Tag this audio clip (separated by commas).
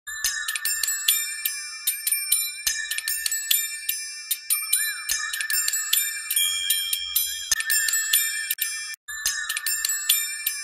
Glockenspiel, Music